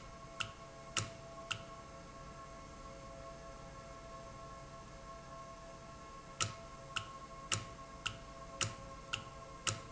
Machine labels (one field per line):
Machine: valve